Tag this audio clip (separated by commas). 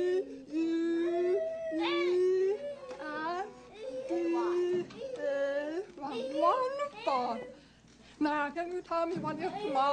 inside a large room or hall, Speech